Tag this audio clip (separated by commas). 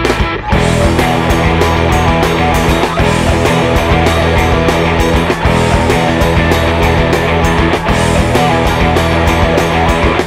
Music